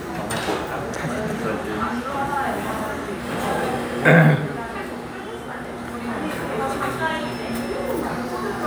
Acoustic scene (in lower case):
crowded indoor space